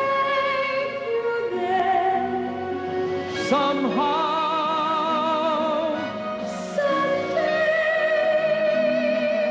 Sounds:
Music, Female singing, Male singing

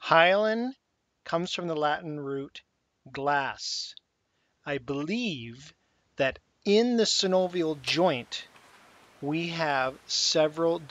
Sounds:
Speech

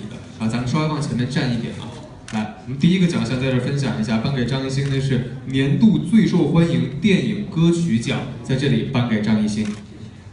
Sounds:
Speech

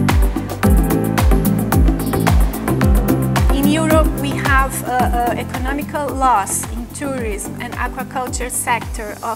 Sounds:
Music, Speech

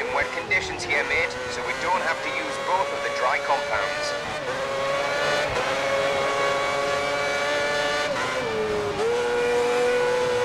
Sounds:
Speech

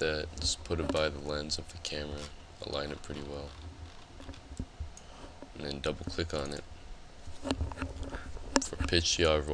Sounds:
Speech

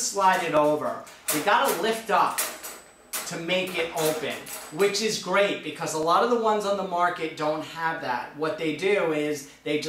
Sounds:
Speech

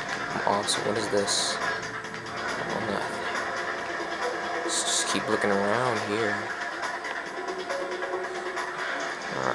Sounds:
Music, Speech

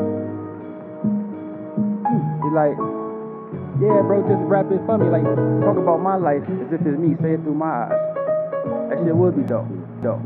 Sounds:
Speech, Music

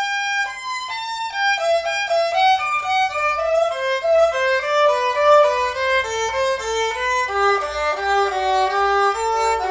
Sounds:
playing violin, Bowed string instrument, Violin

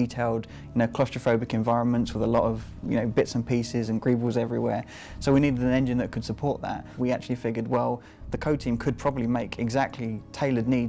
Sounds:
Speech, Music

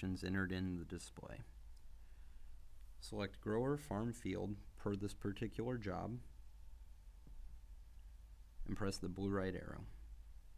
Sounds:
Speech

